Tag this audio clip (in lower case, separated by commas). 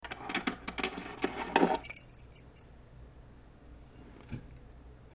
keys jangling, home sounds